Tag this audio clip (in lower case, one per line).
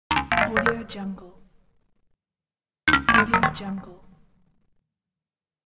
speech
sound effect